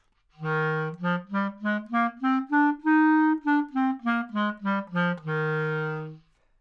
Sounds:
musical instrument, music, wind instrument

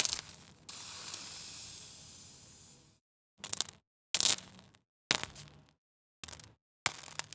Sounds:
hiss

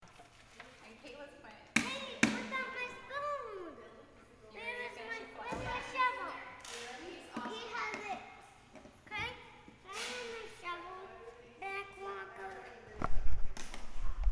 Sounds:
human group actions

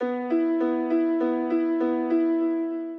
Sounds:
keyboard (musical), music, musical instrument, piano

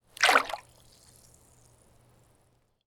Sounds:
liquid, splatter, water

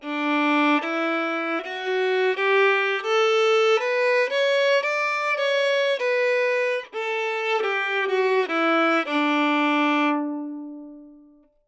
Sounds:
musical instrument, bowed string instrument, music

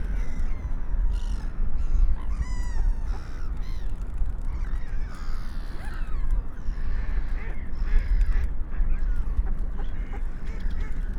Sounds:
wild animals, animal, seagull, bird

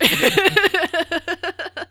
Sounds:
laughter, human voice

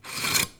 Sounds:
cutlery, home sounds

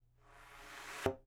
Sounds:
thump

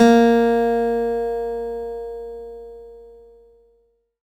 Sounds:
music, guitar, plucked string instrument, acoustic guitar, musical instrument

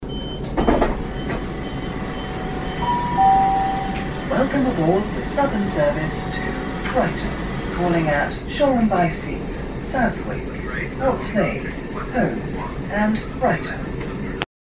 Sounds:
rail transport, vehicle, train

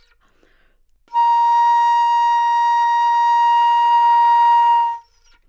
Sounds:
music, woodwind instrument, musical instrument

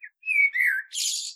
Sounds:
animal, wild animals, bird

